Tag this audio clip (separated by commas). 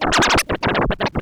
Music, Musical instrument, Scratching (performance technique)